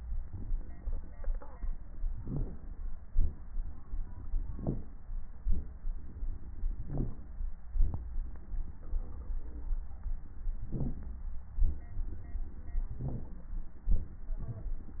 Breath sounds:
2.11-2.75 s: inhalation
2.11-2.75 s: crackles
3.11-3.51 s: exhalation
4.54-4.93 s: inhalation
4.54-4.93 s: crackles
5.41-5.81 s: exhalation
6.81-7.27 s: inhalation
6.81-7.27 s: crackles
7.76-8.20 s: exhalation
10.68-11.18 s: inhalation
10.68-11.18 s: crackles
11.54-11.99 s: exhalation
13.05-13.47 s: inhalation

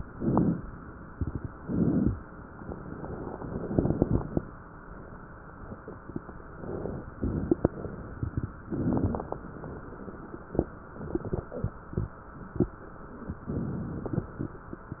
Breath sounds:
0.00-0.80 s: inhalation
0.80-1.52 s: crackles
0.80-1.54 s: exhalation
1.52-2.24 s: inhalation
1.52-2.24 s: crackles
2.26-3.38 s: exhalation
3.40-4.84 s: inhalation
3.40-4.84 s: crackles
6.41-7.13 s: inhalation
6.41-7.13 s: crackles
7.13-8.63 s: exhalation
7.15-8.63 s: crackles
8.63-9.57 s: inhalation
8.63-9.57 s: crackles
9.59-10.87 s: exhalation
9.59-10.87 s: crackles
13.16-13.98 s: inhalation
13.16-13.98 s: crackles

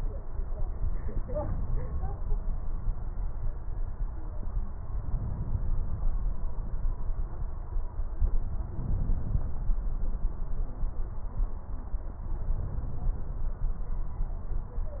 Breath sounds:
4.71-5.84 s: inhalation
8.66-9.79 s: inhalation
12.36-13.50 s: inhalation

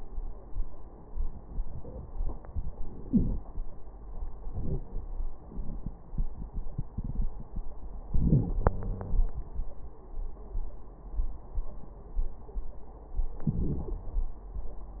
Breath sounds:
3.00-3.35 s: wheeze
8.16-8.55 s: inhalation
8.16-8.55 s: wheeze
8.57-9.30 s: exhalation
8.57-9.30 s: wheeze
13.44-14.08 s: inhalation

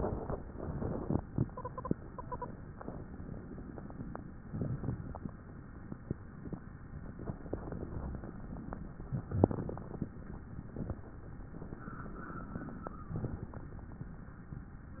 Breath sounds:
0.00-0.34 s: inhalation
0.42-2.52 s: exhalation

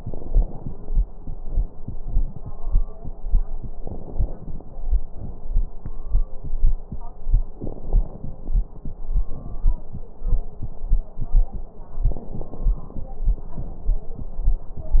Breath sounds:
0.00-1.04 s: inhalation
0.00-1.04 s: crackles
3.73-4.98 s: crackles
3.74-5.00 s: inhalation
5.00-6.11 s: crackles
5.03-6.09 s: exhalation
7.63-9.04 s: inhalation
7.63-9.04 s: crackles
9.29-10.32 s: exhalation
9.29-10.32 s: crackles
12.01-13.50 s: crackles
12.01-13.51 s: inhalation
13.51-15.00 s: exhalation
13.51-15.00 s: crackles

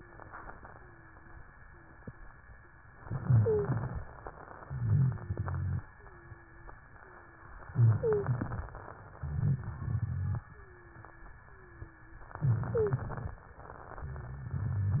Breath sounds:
0.00-0.52 s: wheeze
0.70-1.37 s: wheeze
1.65-2.31 s: wheeze
3.01-4.08 s: inhalation
3.19-3.78 s: wheeze
4.64-5.82 s: exhalation
4.64-5.82 s: wheeze
4.64-5.82 s: rhonchi
5.92-6.75 s: wheeze
6.95-7.73 s: wheeze
7.71-8.84 s: inhalation
7.91-8.33 s: wheeze
9.16-10.46 s: exhalation
9.16-10.46 s: rhonchi
10.52-11.32 s: wheeze
11.44-12.25 s: wheeze
12.41-13.41 s: inhalation
12.71-13.01 s: wheeze
13.94-15.00 s: exhalation
13.94-15.00 s: rhonchi

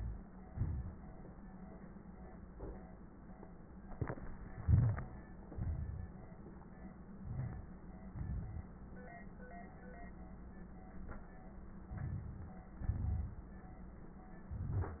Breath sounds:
0.48-1.22 s: exhalation
4.59-5.45 s: crackles
4.60-5.47 s: inhalation
5.46-6.35 s: exhalation
7.13-8.05 s: crackles
7.16-8.07 s: inhalation
8.08-8.72 s: exhalation
11.90-12.81 s: inhalation
12.83-13.54 s: exhalation
12.83-13.54 s: crackles
14.44-15.00 s: inhalation
14.44-15.00 s: crackles

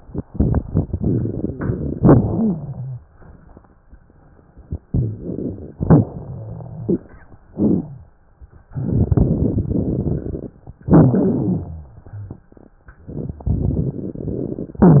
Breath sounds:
2.28-3.03 s: wheeze
4.83-5.77 s: inhalation
4.83-5.77 s: wheeze
5.78-7.46 s: exhalation
6.22-7.02 s: wheeze
7.48-8.68 s: inhalation
7.71-8.15 s: wheeze
8.67-10.77 s: exhalation
10.82-12.79 s: inhalation
11.51-12.40 s: wheeze
12.81-14.79 s: exhalation
12.81-14.79 s: crackles

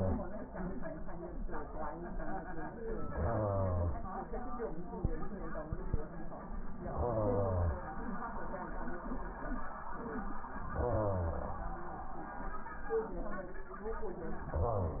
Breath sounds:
3.04-4.01 s: inhalation
6.84-7.81 s: inhalation
10.73-11.71 s: inhalation
14.52-15.00 s: inhalation

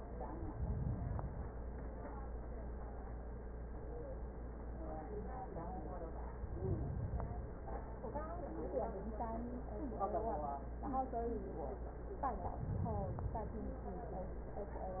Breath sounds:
0.37-1.60 s: inhalation
6.31-7.63 s: inhalation
12.36-13.68 s: inhalation

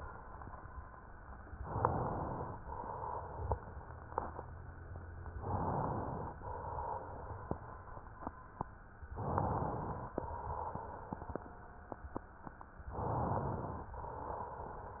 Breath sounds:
1.59-2.56 s: inhalation
2.56-3.71 s: exhalation
5.32-6.33 s: inhalation
6.33-7.64 s: exhalation
9.15-10.14 s: inhalation
10.14-11.43 s: exhalation
12.90-13.93 s: inhalation
13.93-15.00 s: exhalation

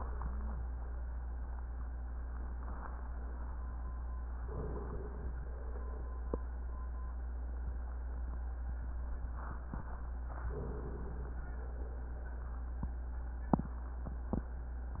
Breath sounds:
4.42-5.43 s: inhalation
5.42-6.61 s: exhalation
10.48-11.41 s: inhalation
11.43-12.61 s: exhalation

